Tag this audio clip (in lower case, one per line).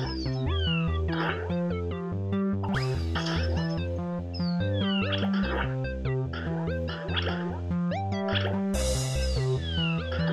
music